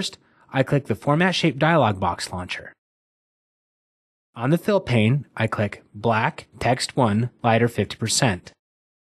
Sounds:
speech

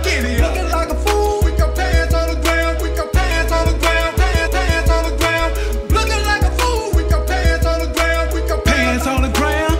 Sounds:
reggae
singing

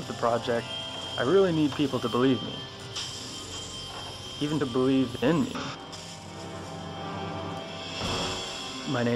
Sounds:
music
speech

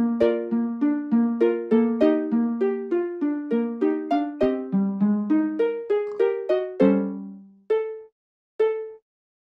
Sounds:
music

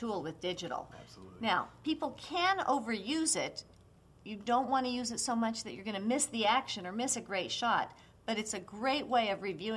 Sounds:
speech

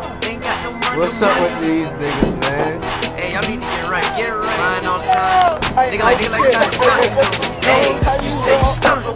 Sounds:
music
speech

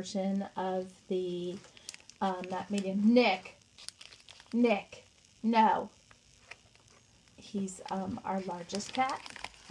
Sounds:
speech
inside a small room

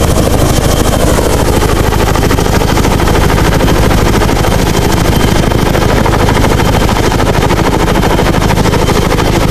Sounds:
vehicle
aircraft
helicopter

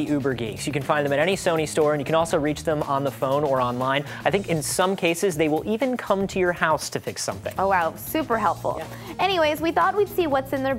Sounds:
speech
music
background music

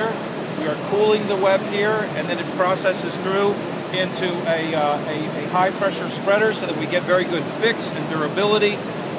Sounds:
speech

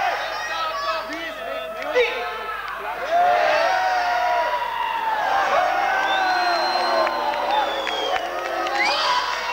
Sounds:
speech

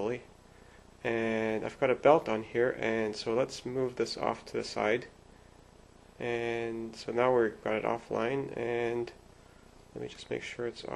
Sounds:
speech

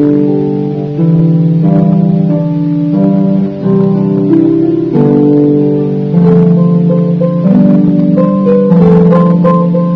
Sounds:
music

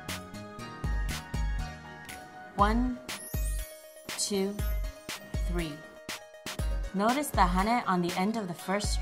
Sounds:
speech
music

